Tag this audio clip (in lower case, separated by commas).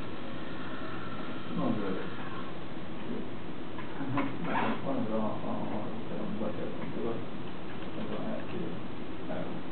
speech